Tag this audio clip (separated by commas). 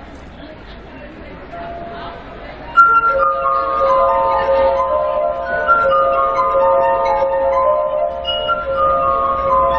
Music